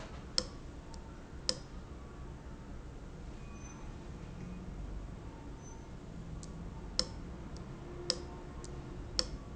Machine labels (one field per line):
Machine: valve